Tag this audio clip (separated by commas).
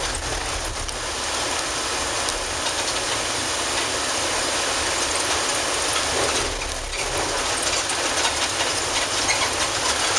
Bus, Vehicle